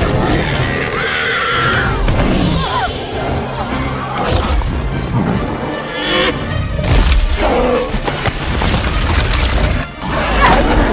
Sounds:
dinosaurs bellowing

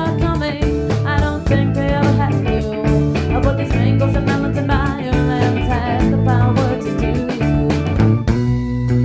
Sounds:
Music, Exciting music

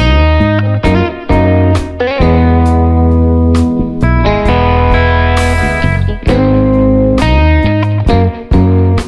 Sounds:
Music

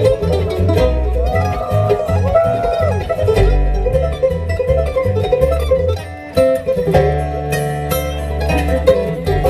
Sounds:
Guitar, Music, Musical instrument, Plucked string instrument

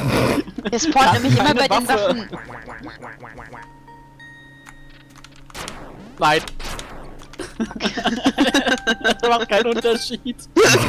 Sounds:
Speech

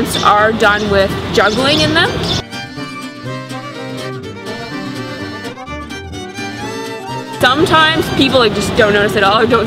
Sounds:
Music, outside, urban or man-made, Speech

